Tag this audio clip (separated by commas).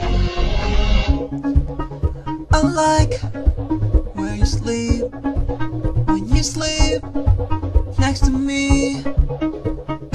Music, Pop music